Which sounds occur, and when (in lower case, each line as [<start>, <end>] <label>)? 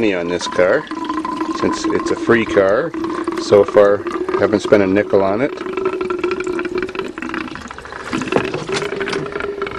[0.00, 0.82] male speech
[0.00, 9.75] background noise
[0.00, 9.75] fill (with liquid)
[1.50, 1.84] male speech
[1.96, 2.87] male speech
[3.34, 3.97] male speech
[4.30, 5.46] male speech
[7.44, 8.70] surface contact
[8.74, 8.82] generic impact sounds
[9.08, 9.19] generic impact sounds